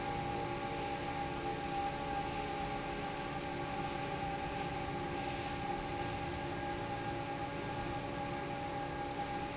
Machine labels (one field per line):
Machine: fan